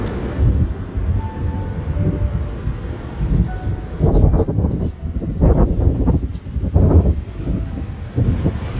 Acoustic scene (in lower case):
park